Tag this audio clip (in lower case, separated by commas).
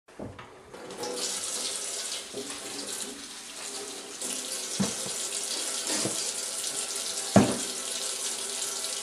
inside a small room, faucet